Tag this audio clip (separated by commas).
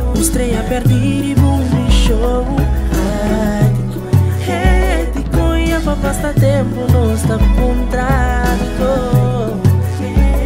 Music